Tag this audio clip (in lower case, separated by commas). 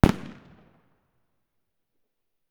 explosion, fireworks